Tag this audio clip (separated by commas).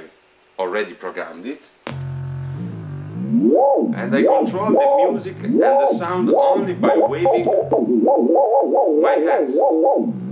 Theremin